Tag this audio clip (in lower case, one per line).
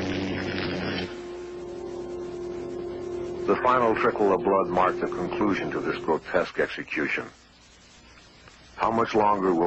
running electric fan